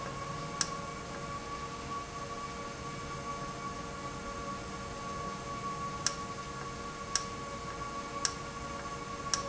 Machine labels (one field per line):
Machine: valve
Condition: normal